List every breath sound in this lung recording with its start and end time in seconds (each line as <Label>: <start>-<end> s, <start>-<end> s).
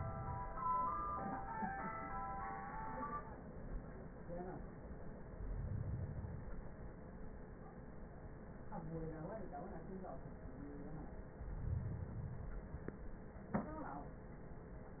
Inhalation: 5.20-6.70 s, 11.34-12.84 s